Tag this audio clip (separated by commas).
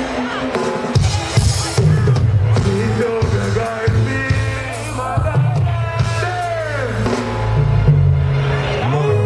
Blues, Speech, Music